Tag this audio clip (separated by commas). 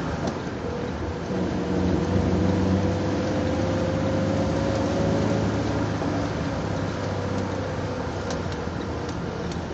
Engine, Idling, Vehicle